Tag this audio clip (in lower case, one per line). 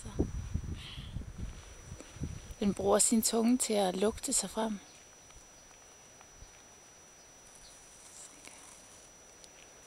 speech